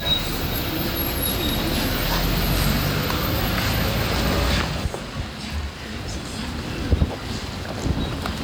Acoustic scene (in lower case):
street